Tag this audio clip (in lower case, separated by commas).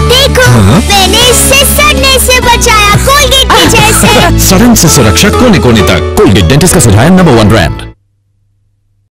music, speech